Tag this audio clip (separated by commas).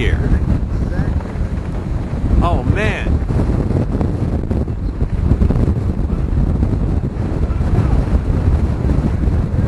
tornado roaring